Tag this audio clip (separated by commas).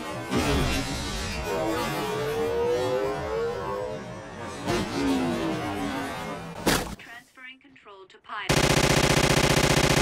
Speech, Video game music, Music